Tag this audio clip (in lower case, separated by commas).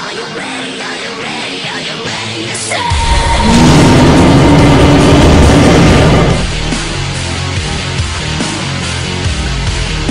animal, speech, music